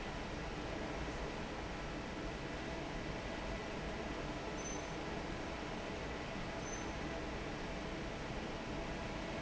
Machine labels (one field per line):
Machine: fan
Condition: normal